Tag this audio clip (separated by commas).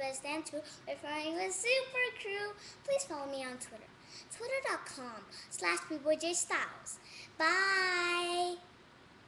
Speech